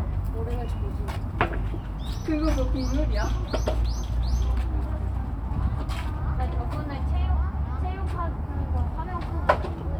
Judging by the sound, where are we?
in a park